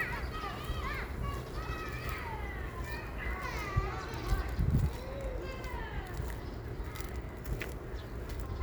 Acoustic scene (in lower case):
residential area